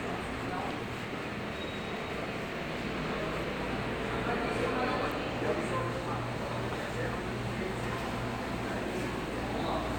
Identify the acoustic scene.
subway station